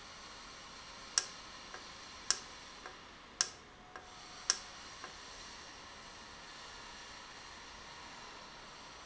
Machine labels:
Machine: valve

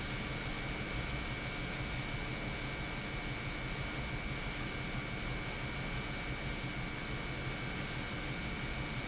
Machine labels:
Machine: pump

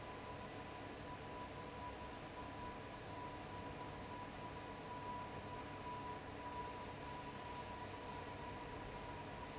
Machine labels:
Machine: fan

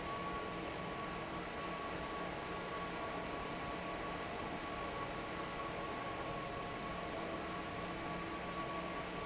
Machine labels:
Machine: fan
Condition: normal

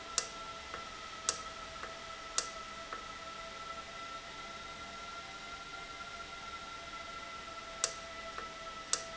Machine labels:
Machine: valve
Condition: normal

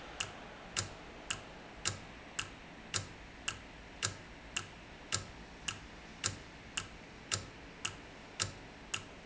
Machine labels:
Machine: valve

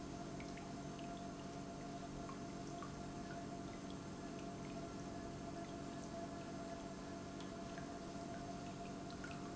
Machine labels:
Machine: pump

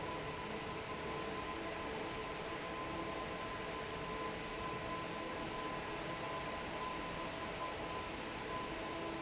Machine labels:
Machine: fan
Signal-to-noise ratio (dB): 0 dB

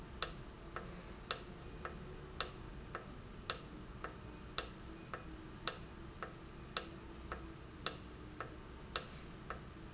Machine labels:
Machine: valve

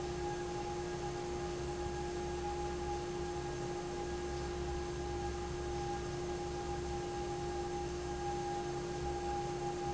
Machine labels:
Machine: fan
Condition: normal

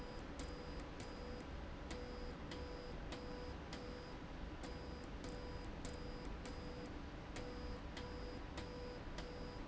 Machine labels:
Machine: slide rail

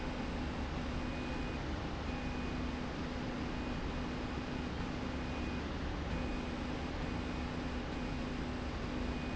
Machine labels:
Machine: slide rail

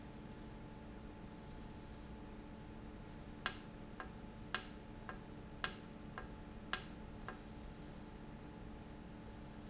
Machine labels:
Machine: valve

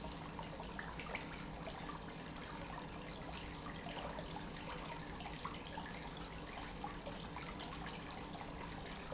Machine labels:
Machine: pump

